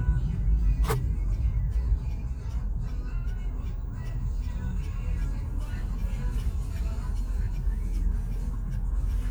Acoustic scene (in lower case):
car